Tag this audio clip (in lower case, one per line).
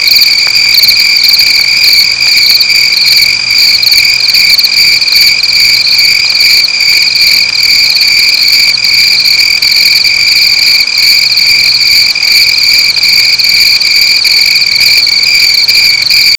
insect
cricket
wild animals
animal